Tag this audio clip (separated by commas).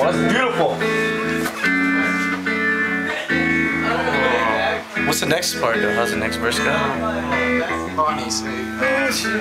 Speech, Male singing, Music